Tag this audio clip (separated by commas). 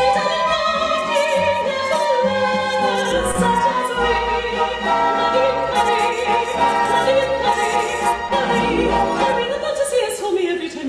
Opera, Classical music, Music